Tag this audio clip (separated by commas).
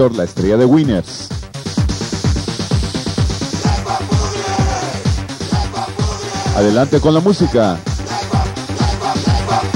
Techno, Speech, Electronic music, Music